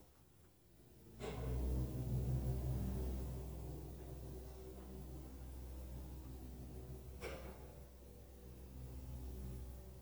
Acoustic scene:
elevator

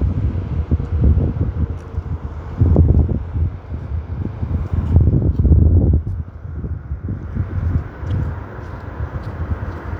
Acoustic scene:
street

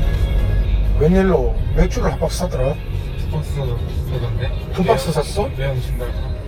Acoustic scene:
car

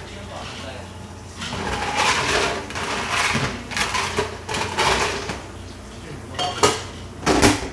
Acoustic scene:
cafe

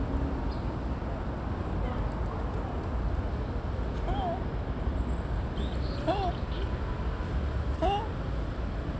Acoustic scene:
park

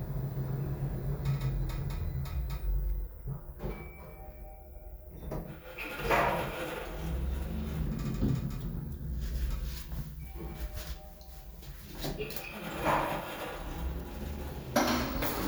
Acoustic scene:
elevator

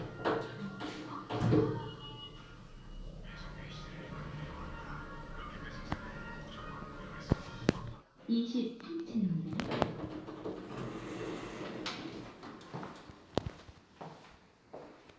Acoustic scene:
elevator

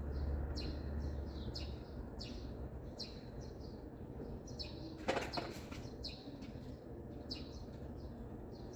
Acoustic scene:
residential area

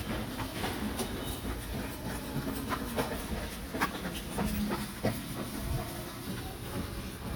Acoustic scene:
subway station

